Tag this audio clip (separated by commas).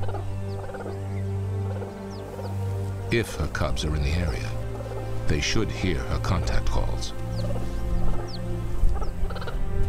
cheetah chirrup